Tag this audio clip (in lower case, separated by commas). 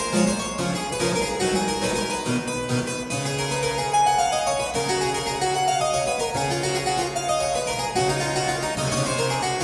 music, harpsichord